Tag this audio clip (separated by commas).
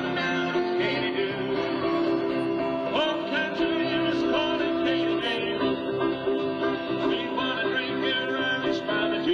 Music, Banjo